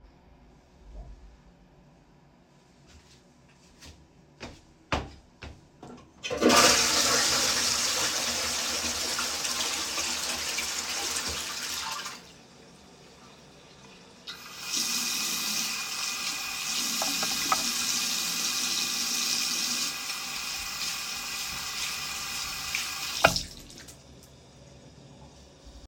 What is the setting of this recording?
lavatory